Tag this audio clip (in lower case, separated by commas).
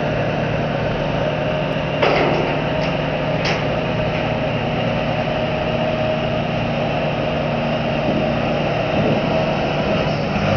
vehicle